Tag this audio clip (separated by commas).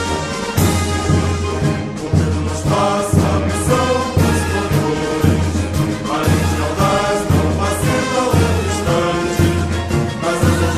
Music